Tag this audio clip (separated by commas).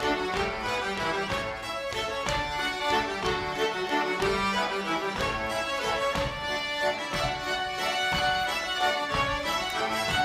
Music, fiddle, Musical instrument